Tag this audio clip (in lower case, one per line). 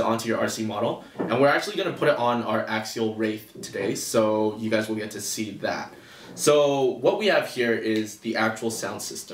speech